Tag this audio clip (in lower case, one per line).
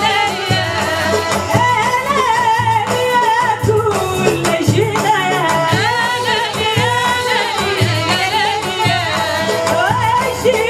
music